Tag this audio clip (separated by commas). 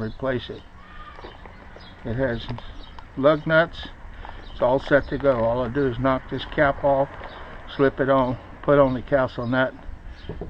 Speech